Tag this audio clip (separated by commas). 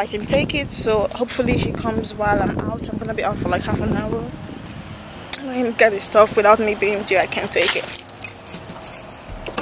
outside, rural or natural, Speech